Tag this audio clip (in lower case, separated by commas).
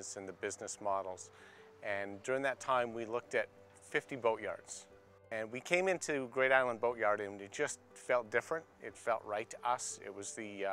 speech